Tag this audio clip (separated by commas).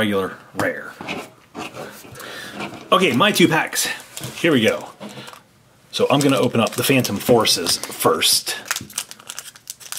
Speech